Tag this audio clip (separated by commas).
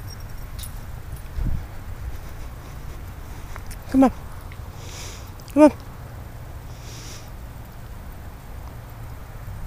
Speech, outside, urban or man-made